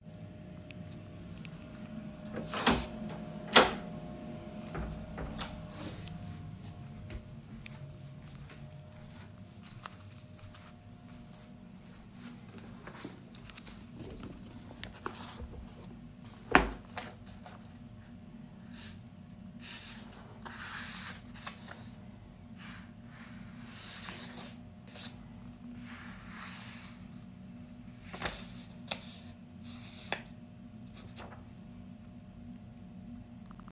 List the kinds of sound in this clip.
door, footsteps